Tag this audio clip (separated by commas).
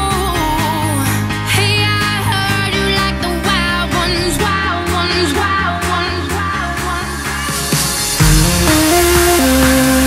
Music, Electronic music, Techno